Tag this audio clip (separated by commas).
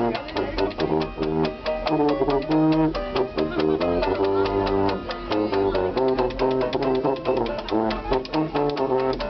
playing washboard